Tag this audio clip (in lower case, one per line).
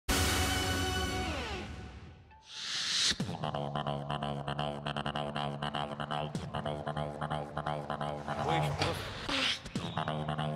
beat boxing